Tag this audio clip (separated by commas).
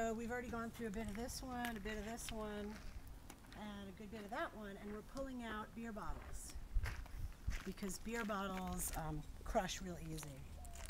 Speech